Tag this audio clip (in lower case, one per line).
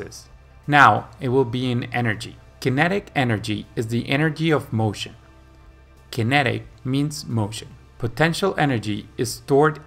striking pool